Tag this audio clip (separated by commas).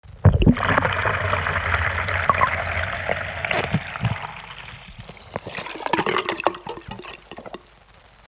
Gurgling, home sounds, Sink (filling or washing), Water